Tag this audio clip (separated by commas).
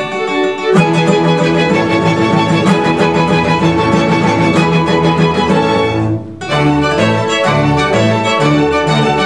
Guitar, Strum, Musical instrument, Plucked string instrument, Orchestra, Music, Acoustic guitar